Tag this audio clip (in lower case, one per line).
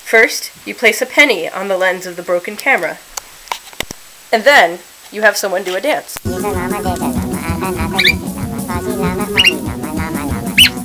music
speech